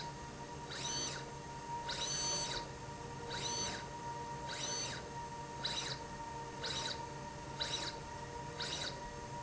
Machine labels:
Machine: slide rail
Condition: abnormal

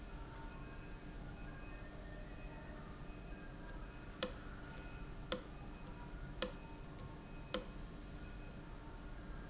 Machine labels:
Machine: valve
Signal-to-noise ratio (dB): 6 dB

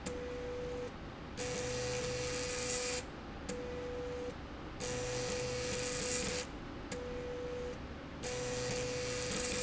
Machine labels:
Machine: slide rail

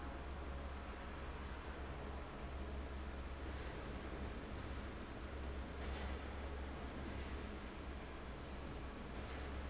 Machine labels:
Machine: fan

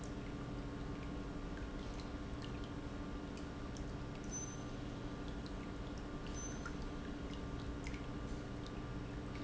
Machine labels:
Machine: pump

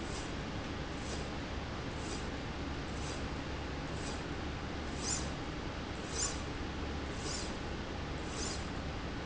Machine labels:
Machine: slide rail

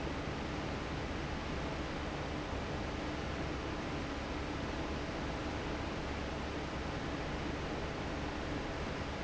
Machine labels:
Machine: fan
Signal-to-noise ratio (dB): -6 dB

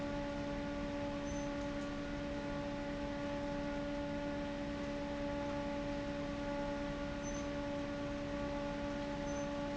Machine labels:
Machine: fan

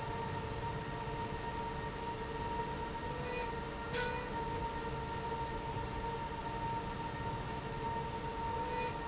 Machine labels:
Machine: slide rail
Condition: normal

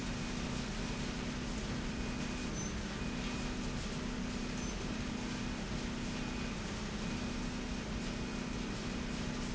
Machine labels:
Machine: slide rail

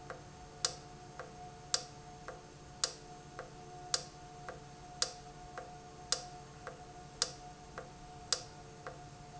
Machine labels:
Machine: valve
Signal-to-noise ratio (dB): 6 dB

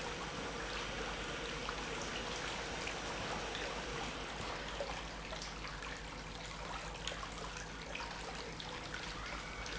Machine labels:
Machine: pump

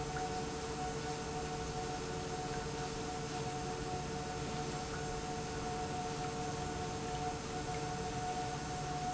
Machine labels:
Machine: pump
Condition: normal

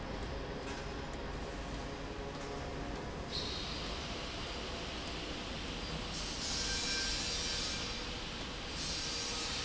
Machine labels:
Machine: slide rail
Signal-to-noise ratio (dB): -6 dB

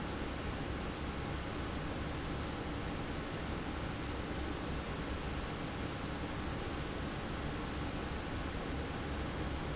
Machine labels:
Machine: fan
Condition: abnormal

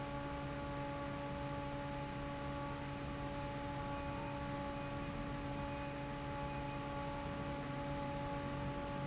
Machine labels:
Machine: fan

